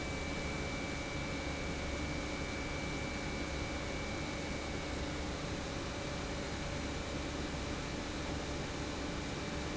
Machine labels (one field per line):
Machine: pump